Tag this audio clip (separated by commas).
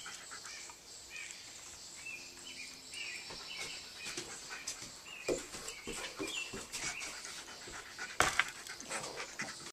pets, Speech, Animal